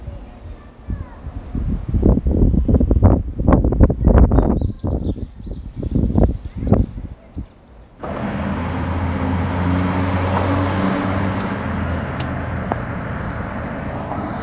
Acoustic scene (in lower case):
residential area